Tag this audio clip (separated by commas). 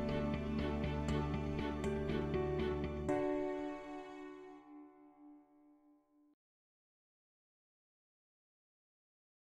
Music